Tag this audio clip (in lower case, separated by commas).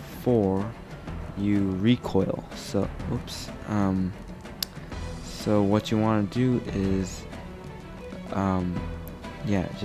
speech, music